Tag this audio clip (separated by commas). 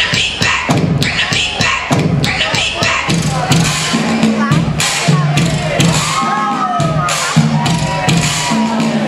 Speech, Music